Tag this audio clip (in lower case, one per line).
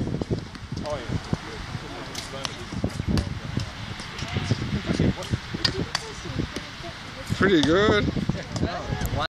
speech